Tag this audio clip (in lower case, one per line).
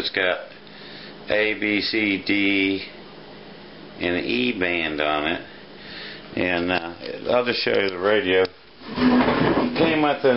speech